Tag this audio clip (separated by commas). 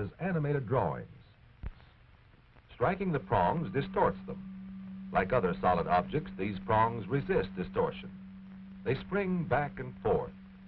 Speech